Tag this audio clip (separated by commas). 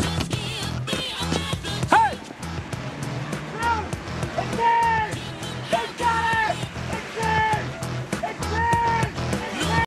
Music, Car passing by, Vehicle, Speech, Car